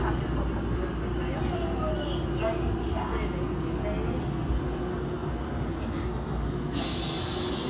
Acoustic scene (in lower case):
subway train